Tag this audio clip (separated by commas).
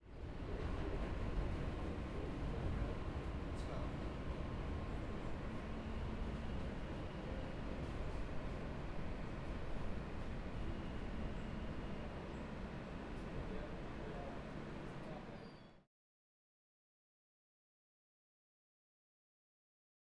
Vehicle, Subway, Rail transport